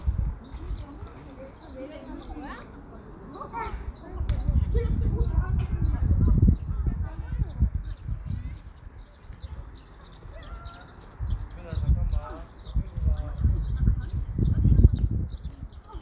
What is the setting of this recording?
park